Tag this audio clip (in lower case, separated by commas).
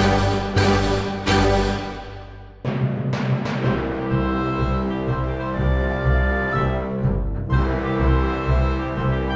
timpani, music